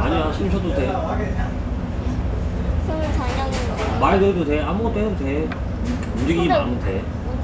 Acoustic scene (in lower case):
restaurant